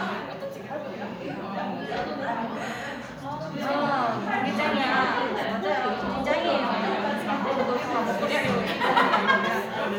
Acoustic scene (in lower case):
crowded indoor space